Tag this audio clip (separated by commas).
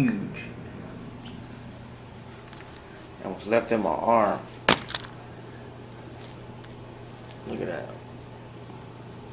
Speech